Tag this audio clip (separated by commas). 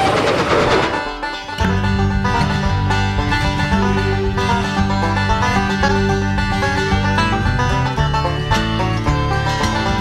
Music, Happy music, Bluegrass